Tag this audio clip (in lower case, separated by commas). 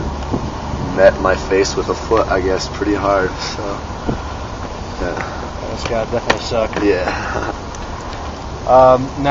speech